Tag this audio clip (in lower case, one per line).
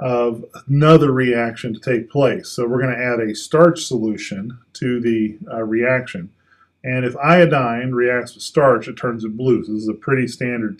speech